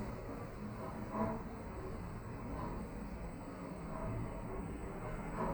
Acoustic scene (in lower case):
elevator